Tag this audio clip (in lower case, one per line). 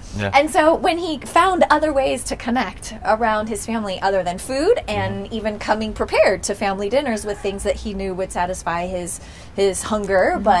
speech